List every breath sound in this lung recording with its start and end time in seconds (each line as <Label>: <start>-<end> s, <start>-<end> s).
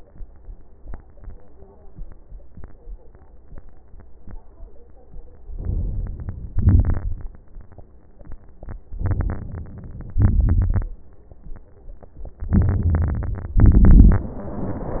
Inhalation: 5.51-6.58 s, 8.97-10.17 s, 12.49-13.61 s
Exhalation: 6.58-7.31 s, 10.21-10.93 s, 13.60-15.00 s
Crackles: 6.58-7.31 s, 10.21-10.93 s, 12.55-13.53 s, 13.60-14.32 s